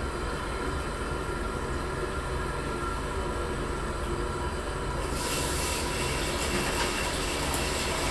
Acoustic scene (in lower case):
restroom